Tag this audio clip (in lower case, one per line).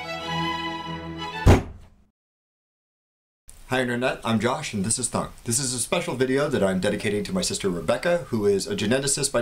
thunk
speech
music